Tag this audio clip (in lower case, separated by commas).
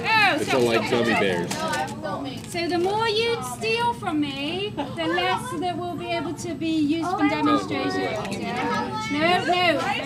speech